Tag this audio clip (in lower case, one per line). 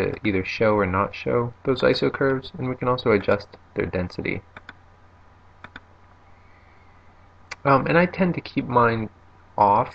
speech